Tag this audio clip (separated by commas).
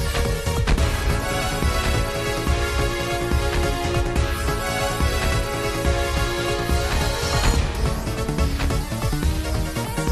Music